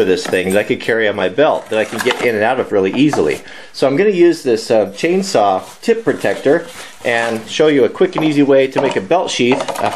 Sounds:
speech

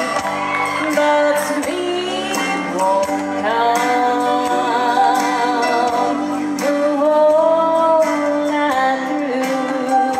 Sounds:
music, female singing

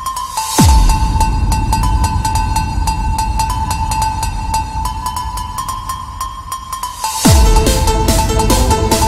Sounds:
music, electronic music, techno

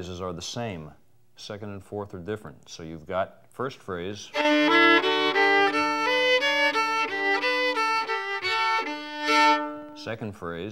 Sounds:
violin, musical instrument, speech, music

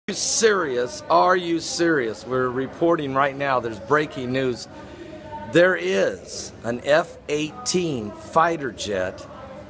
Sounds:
speech

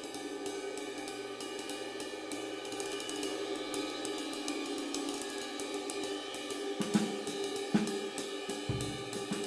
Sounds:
cymbal, playing cymbal

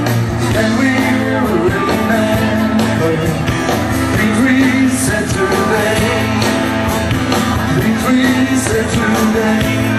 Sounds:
music, inside a large room or hall, singing

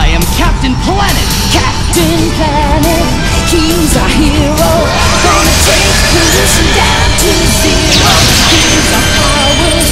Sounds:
music, speech

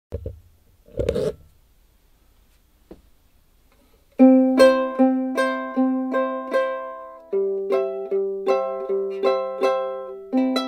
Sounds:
ukulele, music, musical instrument, plucked string instrument

